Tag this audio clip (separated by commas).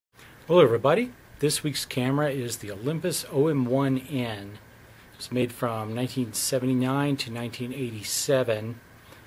Speech